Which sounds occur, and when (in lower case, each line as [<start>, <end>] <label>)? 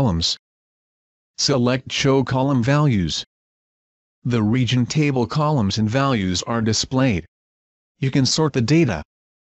[0.00, 0.43] male speech
[1.29, 3.28] male speech
[4.25, 7.32] male speech
[7.97, 9.08] male speech